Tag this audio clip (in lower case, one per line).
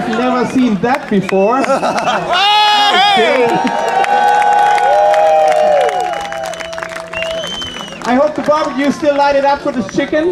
speech